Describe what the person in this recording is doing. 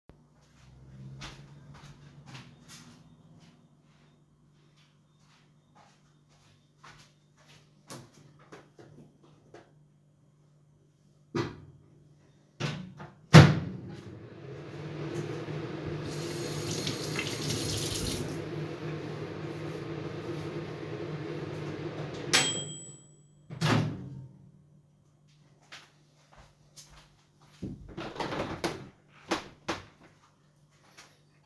I went to a different room to take a bowl, then I came back, put the bowl in the microwave and started the microwave. While it was working, I rinsed my hands. After it was done, I opened the microwave, took the bowl, and went to the window to close it.